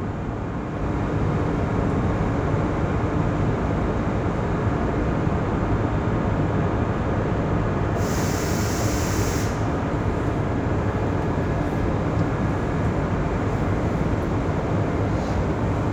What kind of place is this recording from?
subway train